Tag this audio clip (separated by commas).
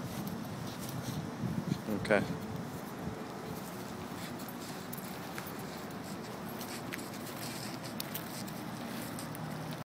Speech